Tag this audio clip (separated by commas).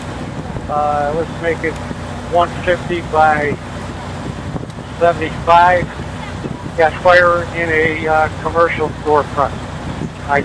Speech